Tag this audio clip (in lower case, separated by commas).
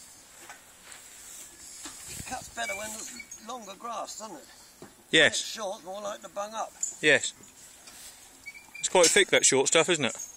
speech